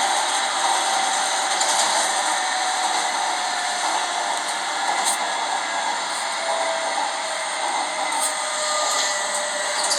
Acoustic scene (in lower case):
subway train